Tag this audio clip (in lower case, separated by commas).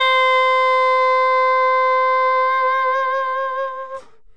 music, musical instrument, woodwind instrument